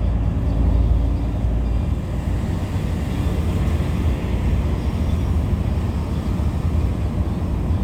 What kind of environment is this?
bus